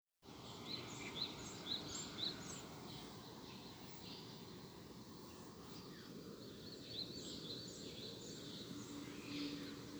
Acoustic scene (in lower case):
park